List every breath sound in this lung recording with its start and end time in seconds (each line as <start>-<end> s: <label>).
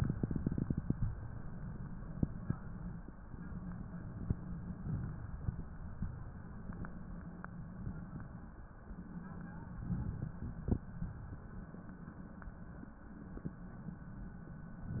9.78-10.81 s: inhalation
10.81-11.79 s: exhalation